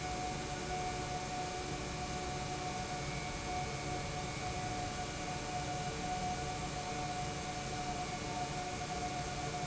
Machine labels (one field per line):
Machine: pump